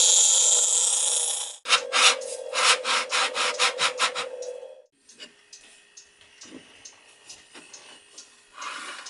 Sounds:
Wood, Tools

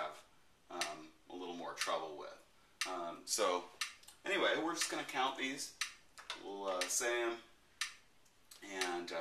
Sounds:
Speech, Clapping

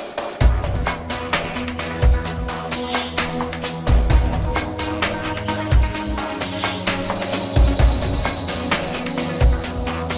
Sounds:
Music, Background music

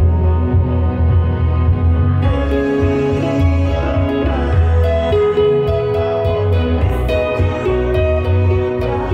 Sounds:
Acoustic guitar, Plucked string instrument, Strum, Guitar, Music, Musical instrument

